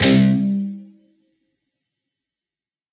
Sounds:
plucked string instrument
guitar
musical instrument
music

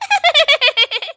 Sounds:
laughter
giggle
human voice

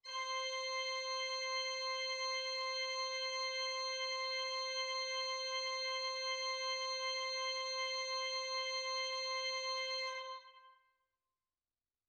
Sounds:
musical instrument
music
organ
keyboard (musical)

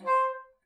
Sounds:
woodwind instrument
musical instrument
music

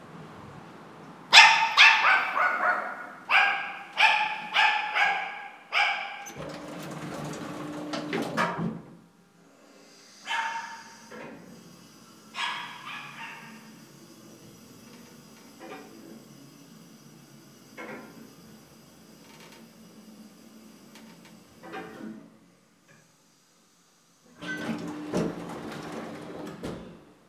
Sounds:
animal
pets
dog

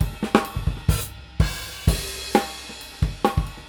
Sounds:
music
drum kit
percussion
musical instrument

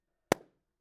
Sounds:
explosion

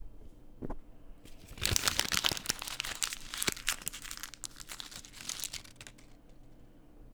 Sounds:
crumpling

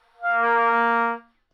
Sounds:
wind instrument
musical instrument
music

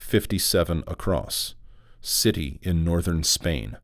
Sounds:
speech
man speaking
human voice

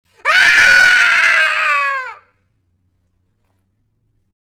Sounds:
human voice
screaming

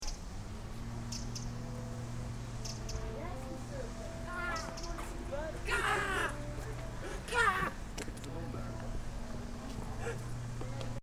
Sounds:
bird
animal
wild animals

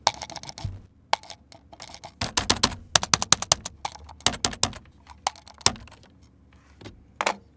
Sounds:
home sounds
typing

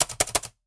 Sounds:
typing
domestic sounds
typewriter

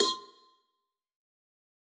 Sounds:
bell
cowbell

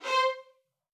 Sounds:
music
musical instrument
bowed string instrument

